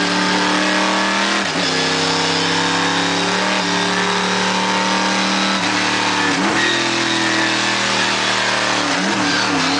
A car is revving up its engine